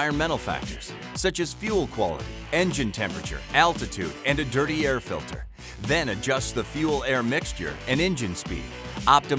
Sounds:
music, speech

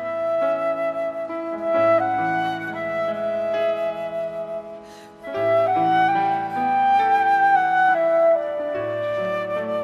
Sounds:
playing flute

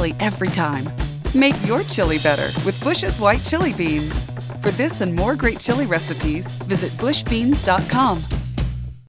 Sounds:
speech, music

